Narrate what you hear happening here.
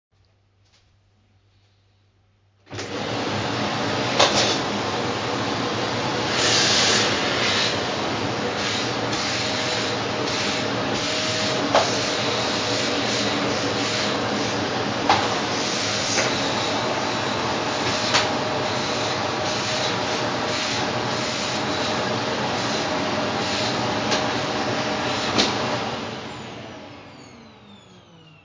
I turned on the vacuum cleaner in the living room and then turned it off after a few seconds.